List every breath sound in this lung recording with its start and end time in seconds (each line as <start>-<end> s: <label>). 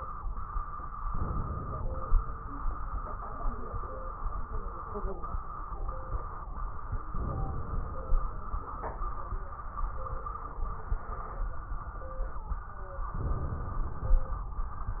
1.07-2.23 s: inhalation
7.13-8.29 s: inhalation
13.19-14.35 s: inhalation
13.19-14.35 s: crackles